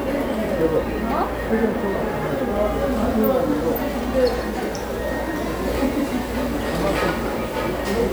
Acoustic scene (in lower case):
restaurant